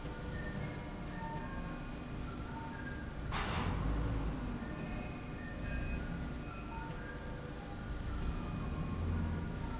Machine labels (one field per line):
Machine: slide rail